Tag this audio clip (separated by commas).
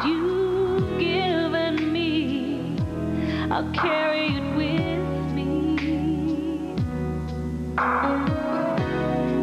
Music, Tender music